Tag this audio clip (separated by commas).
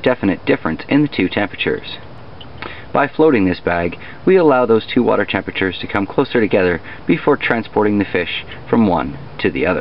inside a small room, Speech